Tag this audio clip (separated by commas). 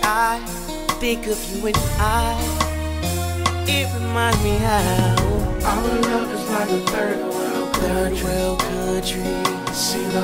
Music, Country